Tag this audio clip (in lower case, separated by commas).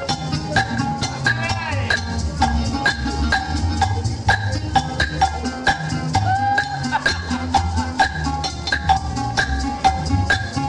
speech, music